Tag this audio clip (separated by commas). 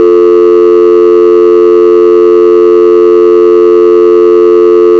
Alarm, Telephone